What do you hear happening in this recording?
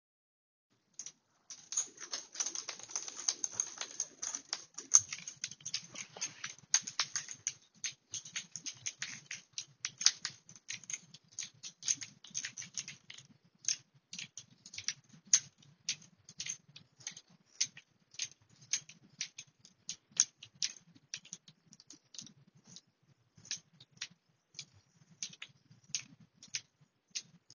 I walked while holding a keychain so the keys made sounds while moving.